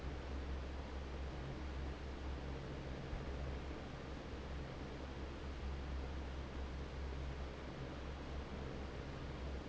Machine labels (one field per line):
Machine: fan